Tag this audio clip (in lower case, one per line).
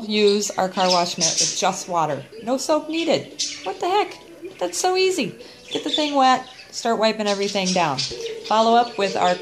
speech